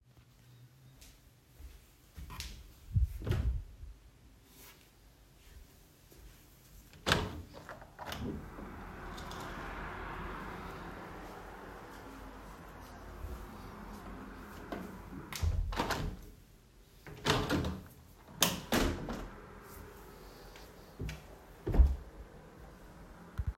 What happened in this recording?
I walked to my wardrobe and opened it. Next to it is my window, which I first opened fully, then I adjusted it to be open only on the top. After that i just closed my wardrobe.